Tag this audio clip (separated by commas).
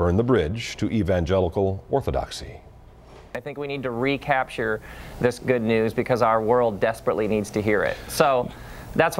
Speech